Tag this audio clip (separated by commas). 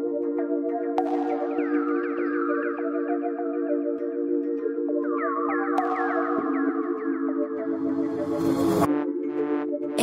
Music, Electronica